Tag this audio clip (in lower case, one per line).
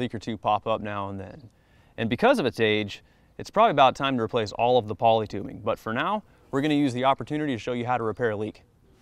speech